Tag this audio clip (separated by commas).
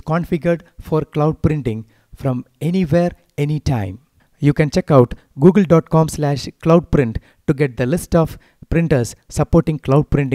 Speech